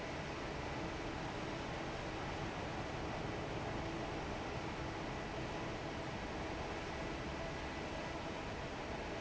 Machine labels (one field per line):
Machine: fan